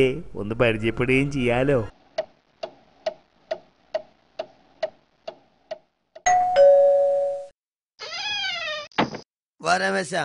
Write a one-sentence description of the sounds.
A man speaks along to the ticking and chiming of a bell